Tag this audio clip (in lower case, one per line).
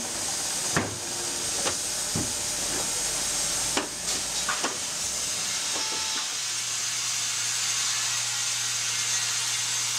sawing
wood